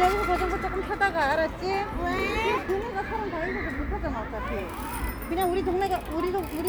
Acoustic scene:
park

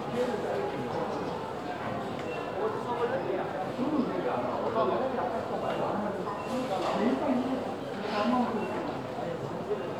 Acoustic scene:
crowded indoor space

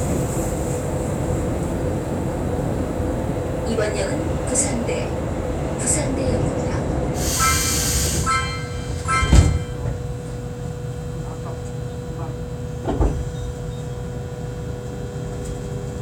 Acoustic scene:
subway train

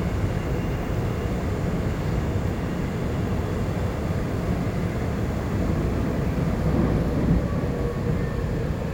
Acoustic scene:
subway train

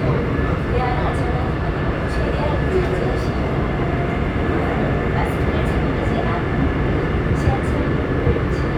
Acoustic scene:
subway train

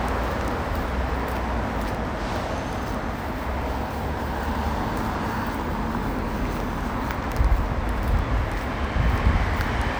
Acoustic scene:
street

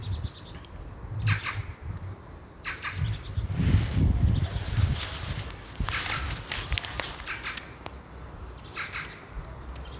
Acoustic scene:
park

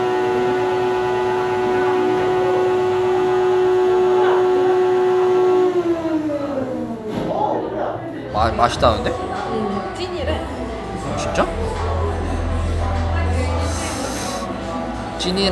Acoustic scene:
cafe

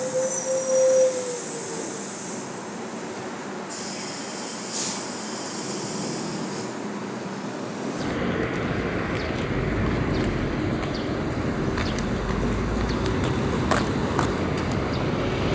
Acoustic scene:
street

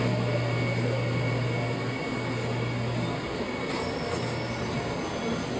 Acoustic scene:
subway train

